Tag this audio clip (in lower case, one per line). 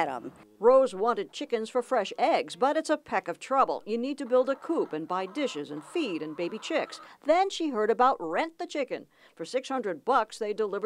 rooster
cluck
fowl